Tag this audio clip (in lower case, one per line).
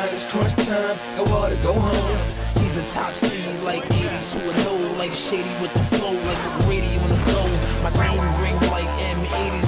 music